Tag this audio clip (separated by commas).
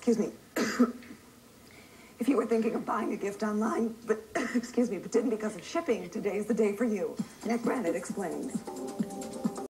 Music, Speech, Throat clearing